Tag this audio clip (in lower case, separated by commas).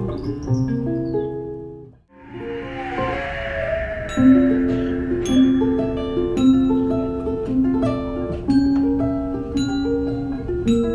music